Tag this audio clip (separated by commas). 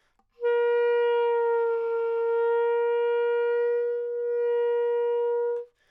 Wind instrument, Music, Musical instrument